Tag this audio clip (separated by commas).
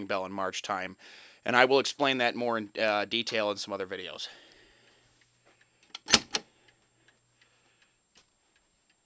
Speech